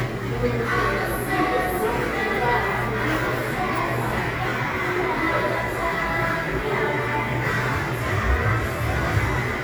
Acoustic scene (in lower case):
crowded indoor space